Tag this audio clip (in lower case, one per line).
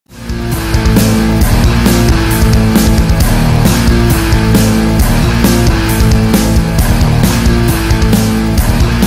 music
progressive rock